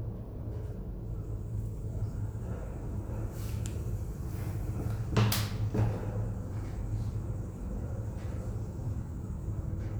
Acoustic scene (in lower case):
elevator